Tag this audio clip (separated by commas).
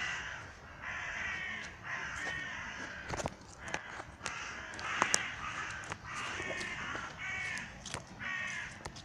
crow cawing